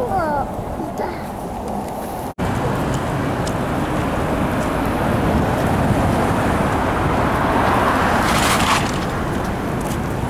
A child coos and then the wind gusts strongly